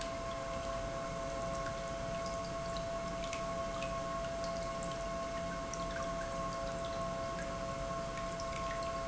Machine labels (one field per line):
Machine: pump